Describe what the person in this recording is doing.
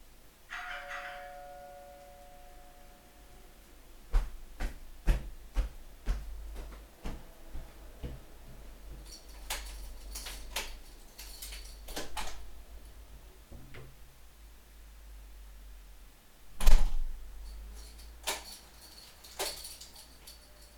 The dorbell rang, I went to open the door. I unlocked the door with the keys, opened the door, closed the door and locked it with the keys.